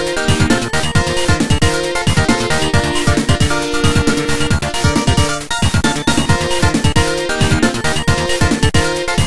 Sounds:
Music

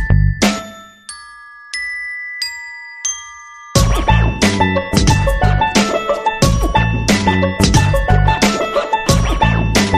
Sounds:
Mallet percussion, Glockenspiel, Marimba

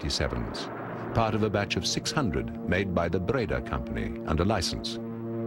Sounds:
Speech

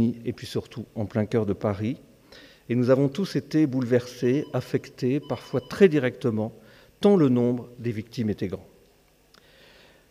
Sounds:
Speech

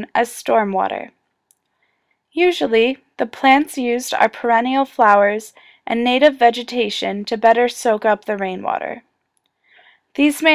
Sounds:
Speech

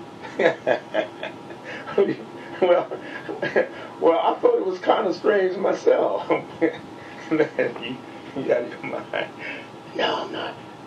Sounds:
Speech

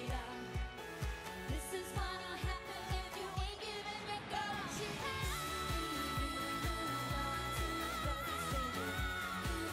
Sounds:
Music of Asia

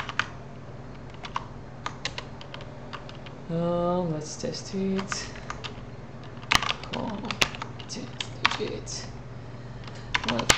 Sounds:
Speech

